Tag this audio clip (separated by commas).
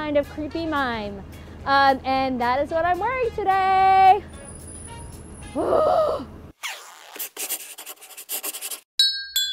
Music, outside, urban or man-made, Speech